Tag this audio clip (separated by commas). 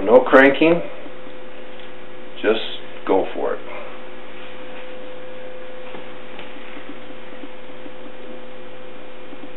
Speech